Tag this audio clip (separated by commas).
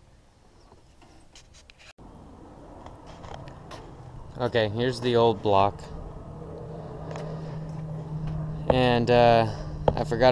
Speech